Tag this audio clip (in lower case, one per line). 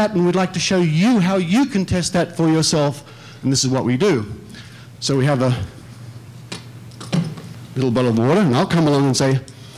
speech